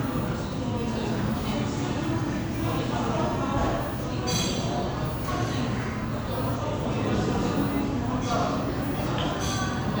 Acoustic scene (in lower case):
crowded indoor space